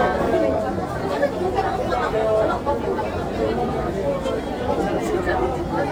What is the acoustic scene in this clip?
crowded indoor space